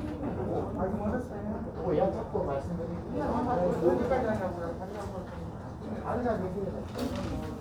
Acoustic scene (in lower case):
crowded indoor space